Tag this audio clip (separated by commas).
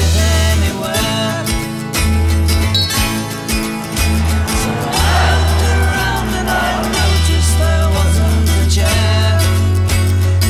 Music